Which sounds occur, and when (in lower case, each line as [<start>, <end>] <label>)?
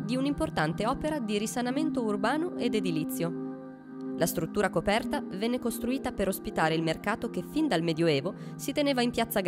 [0.00, 3.26] woman speaking
[0.00, 9.45] music
[3.97, 4.03] tick
[4.13, 5.16] woman speaking
[5.36, 8.28] woman speaking
[8.33, 8.55] breathing
[8.57, 9.45] woman speaking